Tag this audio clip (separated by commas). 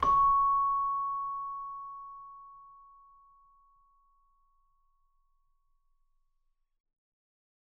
Music, Bell, Musical instrument, Keyboard (musical)